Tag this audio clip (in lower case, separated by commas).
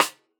musical instrument, drum, percussion, music, snare drum